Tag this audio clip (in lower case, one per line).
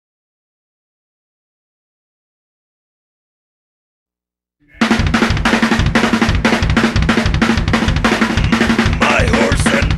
music